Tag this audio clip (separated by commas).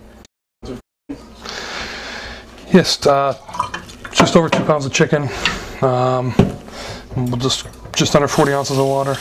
Speech